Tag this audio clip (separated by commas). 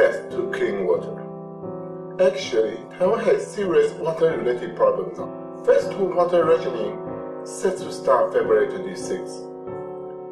Music, Speech